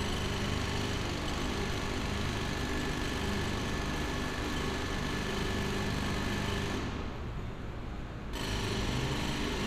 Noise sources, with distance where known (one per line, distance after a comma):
jackhammer